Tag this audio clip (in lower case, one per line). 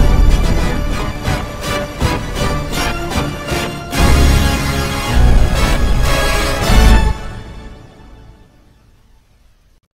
music
techno